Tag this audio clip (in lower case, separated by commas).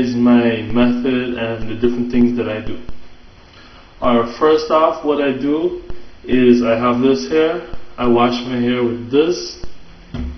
speech